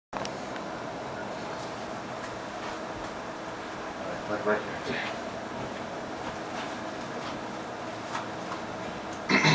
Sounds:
inside a small room, Speech

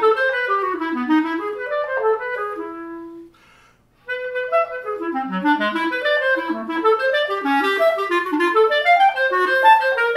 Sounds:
Musical instrument, Music

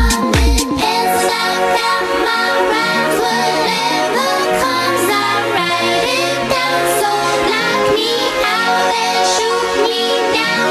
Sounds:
Music

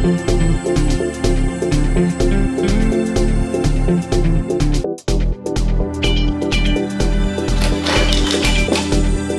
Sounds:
Music

